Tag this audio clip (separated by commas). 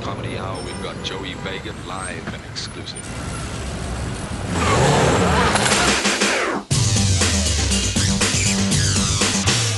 Music, Vehicle, Bicycle, Speech